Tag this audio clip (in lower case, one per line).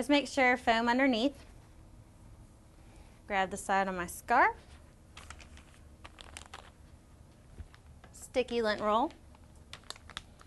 inside a small room
speech